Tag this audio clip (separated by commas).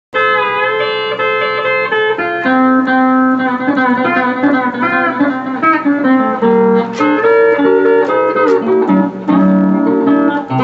Music